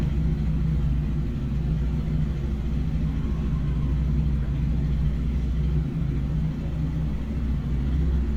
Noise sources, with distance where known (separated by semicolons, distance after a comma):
medium-sounding engine, near